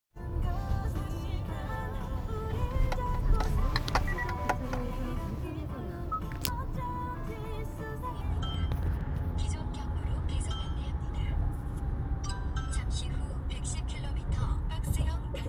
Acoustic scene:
car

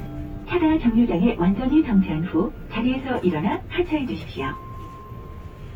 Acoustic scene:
bus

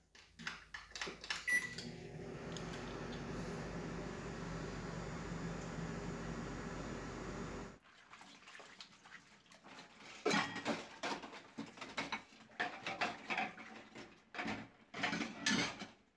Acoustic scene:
kitchen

